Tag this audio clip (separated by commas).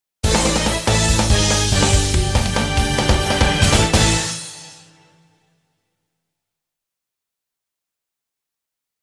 Music